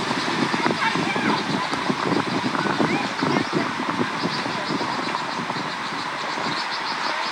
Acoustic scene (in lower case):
park